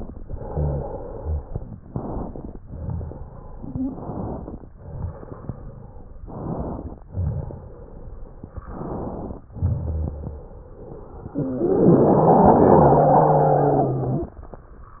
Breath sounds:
Inhalation: 1.86-2.58 s, 3.82-4.64 s, 6.25-6.97 s, 8.69-9.41 s
Exhalation: 0.00-1.74 s, 2.62-3.82 s, 4.73-6.18 s, 7.09-8.63 s, 9.51-11.31 s
Wheeze: 10.43-11.29 s

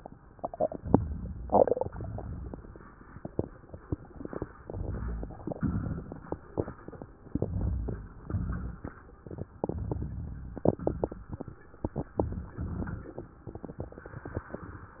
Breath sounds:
Inhalation: 0.78-1.67 s, 4.63-5.43 s, 7.32-8.08 s, 9.64-10.61 s
Exhalation: 1.84-2.73 s, 5.54-6.30 s, 8.22-8.98 s, 10.81-11.54 s
Crackles: 0.78-1.67 s, 1.84-2.73 s, 4.63-5.43 s, 5.54-6.30 s, 7.32-8.08 s, 8.22-8.98 s, 9.64-10.61 s, 10.81-11.54 s

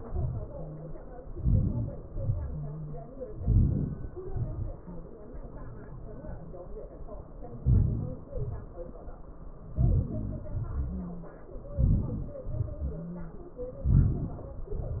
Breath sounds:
Inhalation: 1.43-1.98 s, 3.38-4.06 s, 7.66-8.23 s, 11.83-12.42 s
Exhalation: 2.12-2.54 s, 4.31-4.69 s, 8.37-8.70 s, 12.56-12.93 s

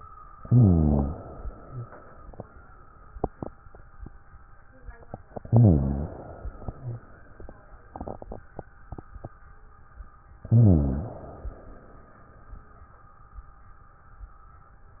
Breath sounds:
Inhalation: 0.38-1.16 s, 5.41-6.19 s, 10.49-11.27 s
Exhalation: 1.25-2.69 s, 6.24-7.68 s, 11.27-12.54 s
Rhonchi: 0.38-1.16 s, 5.41-6.19 s, 10.49-11.27 s

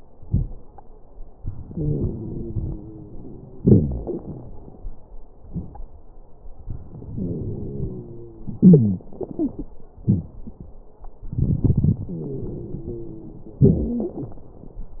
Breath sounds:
Inhalation: 1.64-3.59 s, 6.93-8.60 s, 11.30-13.65 s
Exhalation: 3.60-4.54 s, 8.60-10.29 s, 13.62-14.42 s
Wheeze: 1.64-3.59 s, 3.60-4.54 s, 8.60-9.03 s, 9.18-9.71 s, 12.13-13.59 s, 13.62-14.42 s

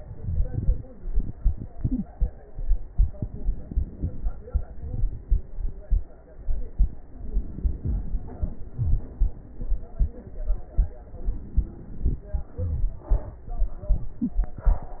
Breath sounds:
Inhalation: 3.23-4.42 s, 7.20-8.63 s, 11.15-12.25 s
Exhalation: 4.43-7.08 s, 8.68-9.98 s
Wheeze: 12.63-13.07 s
Crackles: 3.23-4.42 s, 4.43-7.08 s

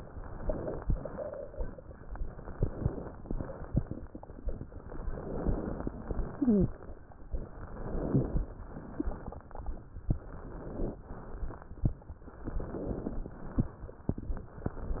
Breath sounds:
Inhalation: 0.00-0.85 s, 2.06-3.09 s, 4.69-5.89 s, 7.34-8.41 s, 10.14-11.02 s, 12.26-13.16 s, 14.34-15.00 s
Exhalation: 0.92-1.95 s, 3.18-4.39 s, 5.89-7.01 s, 8.52-9.87 s, 11.04-11.92 s, 13.18-14.08 s
Wheeze: 6.31-6.77 s
Crackles: 0.00-0.85 s, 0.92-1.95 s, 2.06-3.09 s, 3.18-4.39 s, 4.69-5.89 s, 5.93-7.05 s, 7.34-8.41 s, 8.52-9.87 s, 10.14-11.02 s, 11.04-11.92 s, 12.26-13.16 s, 13.18-14.08 s, 14.34-15.00 s

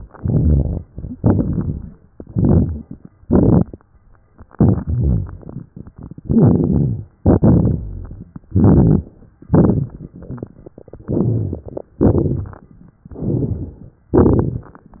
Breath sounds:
Inhalation: 1.14-2.00 s, 3.20-3.85 s, 6.23-7.17 s, 8.46-9.40 s, 11.03-11.97 s, 13.07-14.01 s
Exhalation: 0.10-0.80 s, 2.12-3.08 s, 4.45-5.64 s, 7.19-8.38 s, 9.43-11.02 s, 11.97-12.91 s, 14.13-15.00 s
Crackles: 0.08-0.79 s, 1.14-1.97 s, 2.10-3.09 s, 3.20-3.86 s, 4.43-5.61 s, 6.21-7.17 s, 7.19-8.37 s, 8.43-9.39 s, 9.41-11.03 s, 11.05-11.96 s, 11.97-12.94 s, 14.15-15.00 s

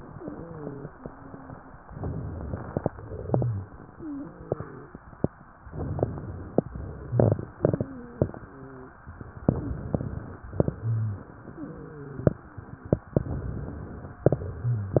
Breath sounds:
Inhalation: 1.85-2.86 s, 5.67-6.69 s, 9.38-10.46 s, 13.21-14.23 s
Exhalation: 2.92-5.61 s, 6.69-9.29 s, 10.52-13.12 s, 14.29-15.00 s
Wheeze: 0.10-1.72 s, 3.87-4.90 s, 7.80-8.96 s, 11.52-12.99 s
Rhonchi: 3.23-3.69 s, 10.69-11.21 s, 14.61-14.97 s
Crackles: 1.85-2.86 s, 5.65-6.68 s, 9.44-10.47 s

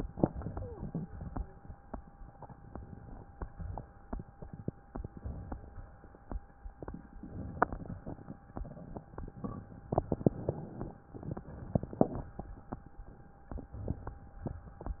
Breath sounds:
Inhalation: 2.70-3.37 s, 4.86-5.65 s, 7.19-8.04 s, 10.10-11.10 s, 13.90-14.46 s
Exhalation: 0.00-1.08 s, 3.37-4.05 s, 5.65-6.36 s, 8.02-8.66 s, 11.10-12.38 s, 14.46-15.00 s
Wheeze: 0.42-0.91 s

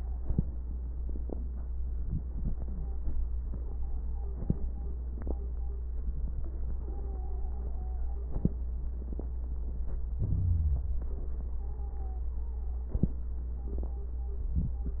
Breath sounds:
Inhalation: 1.81-2.95 s, 10.03-11.31 s
Stridor: 2.59-4.29 s, 6.68-8.67 s, 11.53-12.34 s
Crackles: 10.03-11.31 s

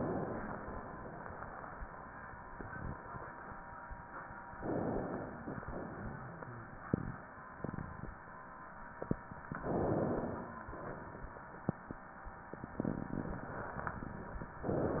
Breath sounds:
Inhalation: 4.54-5.57 s, 9.51-10.66 s
Exhalation: 5.62-6.74 s, 10.71-11.99 s
Wheeze: 10.08-10.73 s
Rhonchi: 5.96-6.68 s

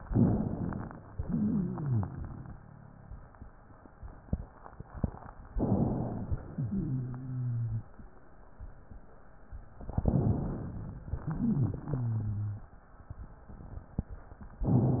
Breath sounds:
Inhalation: 0.00-1.03 s, 5.52-6.43 s, 9.88-11.04 s
Exhalation: 1.12-3.28 s, 6.49-8.01 s, 11.06-12.58 s
Wheeze: 1.12-3.28 s, 6.49-8.01 s, 11.06-12.58 s

